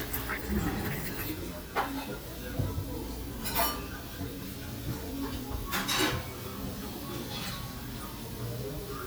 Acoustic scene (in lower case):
restaurant